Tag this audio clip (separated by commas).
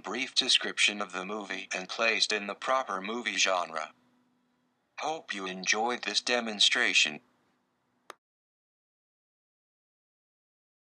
Speech, Narration